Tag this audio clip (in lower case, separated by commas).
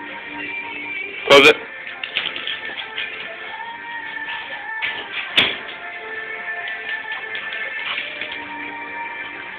door, music, speech